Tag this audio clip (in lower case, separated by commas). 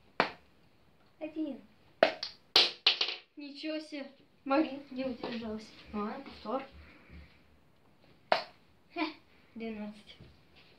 playing darts